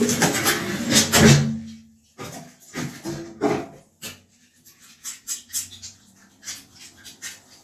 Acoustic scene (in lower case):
restroom